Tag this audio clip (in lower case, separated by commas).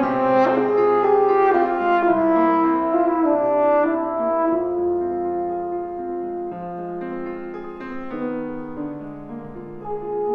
playing french horn, music, french horn, trombone